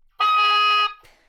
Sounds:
wind instrument, music, musical instrument

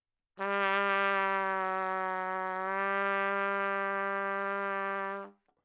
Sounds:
brass instrument, trumpet, musical instrument, music

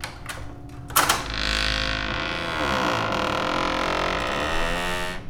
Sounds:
squeak

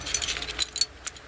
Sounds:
keys jangling, home sounds

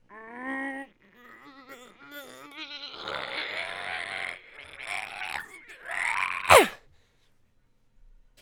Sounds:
human voice

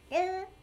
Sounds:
human voice, speech

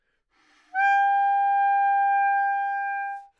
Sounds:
woodwind instrument, music, musical instrument

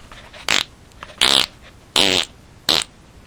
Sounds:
fart

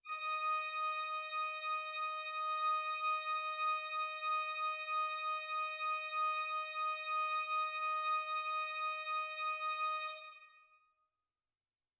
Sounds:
music, musical instrument, organ, keyboard (musical)

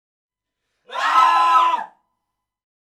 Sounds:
screaming, human voice

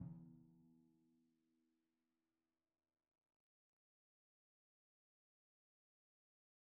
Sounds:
percussion, music, musical instrument, drum

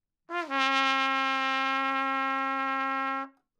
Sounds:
musical instrument, trumpet, brass instrument, music

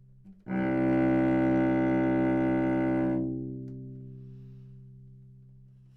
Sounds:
music, bowed string instrument, musical instrument

